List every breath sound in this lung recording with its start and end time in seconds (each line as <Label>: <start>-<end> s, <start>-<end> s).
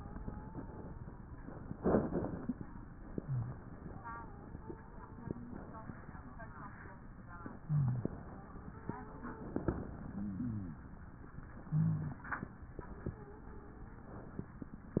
Inhalation: 3.17-3.63 s, 7.67-8.12 s, 11.67-12.28 s
Wheeze: 0.00-1.27 s, 3.91-5.62 s, 8.12-9.60 s, 12.96-14.23 s
Rhonchi: 3.17-3.63 s, 7.67-8.12 s, 10.08-10.93 s, 11.67-12.28 s